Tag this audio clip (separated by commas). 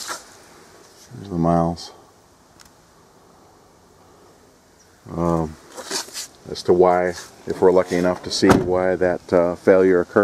Speech